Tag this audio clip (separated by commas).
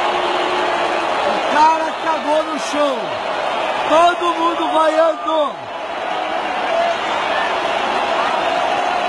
people booing